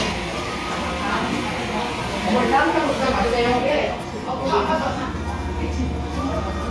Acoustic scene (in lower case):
cafe